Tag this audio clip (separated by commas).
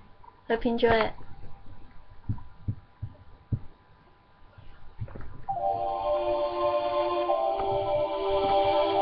Music, Speech